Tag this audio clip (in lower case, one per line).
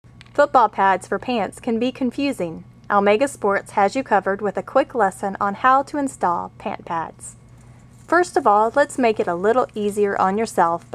speech